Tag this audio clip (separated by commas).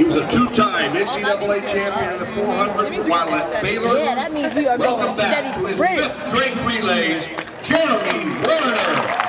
outside, urban or man-made, Speech